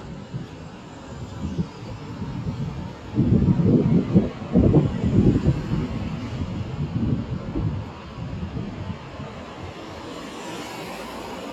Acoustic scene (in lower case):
street